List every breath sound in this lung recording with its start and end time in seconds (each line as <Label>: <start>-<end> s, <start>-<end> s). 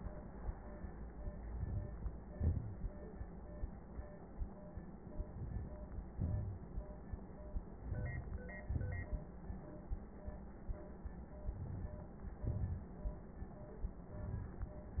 Inhalation: 1.50-1.96 s, 5.26-5.75 s, 7.87-8.45 s, 11.54-12.07 s, 14.15-14.69 s
Exhalation: 2.37-2.87 s, 6.15-6.64 s, 8.71-9.24 s, 12.39-12.92 s